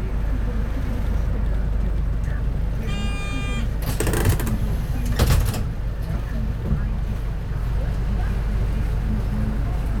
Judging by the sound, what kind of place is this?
bus